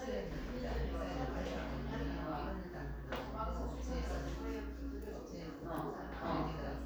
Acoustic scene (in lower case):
crowded indoor space